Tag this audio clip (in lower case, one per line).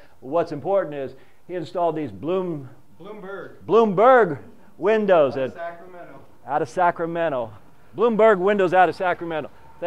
speech